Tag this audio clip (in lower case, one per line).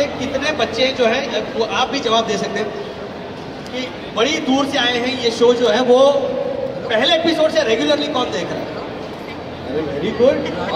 speech